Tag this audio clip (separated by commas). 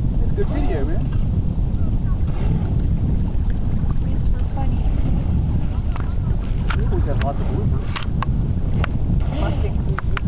Speech, Boat, Rowboat, Vehicle